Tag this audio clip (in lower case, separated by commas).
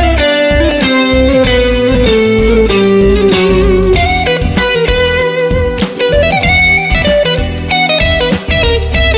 guitar, music, musical instrument, plucked string instrument